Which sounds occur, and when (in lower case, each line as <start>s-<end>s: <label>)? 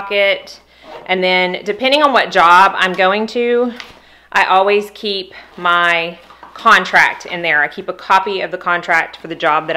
0.0s-0.5s: female speech
0.0s-9.7s: mechanisms
0.7s-0.9s: breathing
0.8s-1.0s: zipper (clothing)
1.1s-3.8s: female speech
2.3s-2.4s: generic impact sounds
2.9s-3.0s: tick
3.7s-3.9s: tick
3.8s-4.2s: breathing
4.3s-5.2s: female speech
5.3s-5.5s: breathing
5.4s-5.7s: generic impact sounds
5.5s-6.1s: female speech
6.2s-6.7s: generic impact sounds
6.6s-9.1s: female speech
9.2s-9.7s: female speech